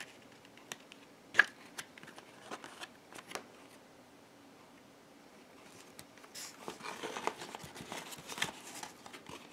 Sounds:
inside a small room

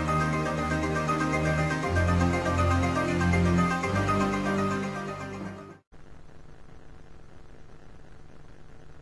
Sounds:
Music

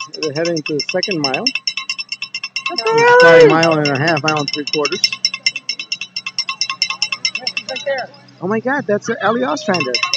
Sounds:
Speech, outside, urban or man-made

